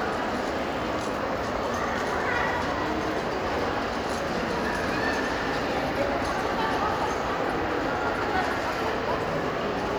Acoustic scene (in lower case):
crowded indoor space